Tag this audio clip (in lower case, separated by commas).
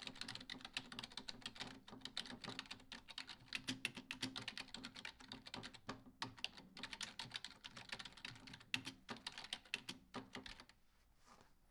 typing, domestic sounds